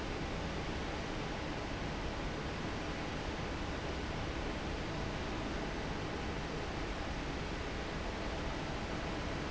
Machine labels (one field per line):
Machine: fan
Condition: normal